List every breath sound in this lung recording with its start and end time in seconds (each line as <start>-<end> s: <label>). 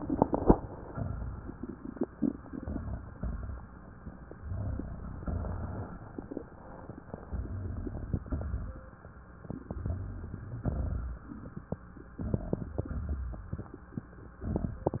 0.88-1.74 s: exhalation
0.88-1.74 s: crackles
2.37-3.05 s: inhalation
2.37-3.05 s: crackles
3.14-4.02 s: exhalation
3.14-4.02 s: crackles
4.32-5.20 s: crackles
4.34-5.18 s: inhalation
5.27-6.44 s: exhalation
5.27-6.44 s: crackles
7.27-8.20 s: inhalation
7.27-8.20 s: crackles
8.25-9.19 s: exhalation
8.25-9.19 s: crackles
9.65-10.58 s: inhalation
9.65-10.58 s: crackles
10.63-11.57 s: exhalation
10.63-11.57 s: crackles
12.20-12.83 s: inhalation
12.20-12.83 s: crackles
12.84-13.68 s: exhalation
12.84-13.68 s: crackles
14.45-15.00 s: inhalation
14.45-15.00 s: crackles